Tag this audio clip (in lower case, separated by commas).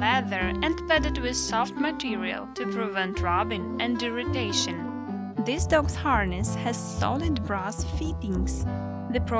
speech, music